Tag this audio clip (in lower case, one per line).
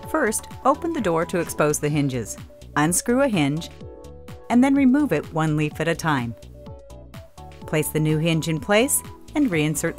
speech
music